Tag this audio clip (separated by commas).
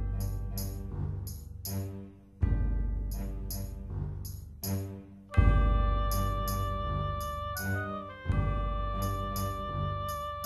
Theme music, Music